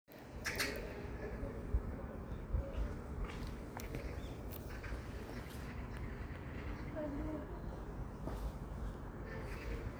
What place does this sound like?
park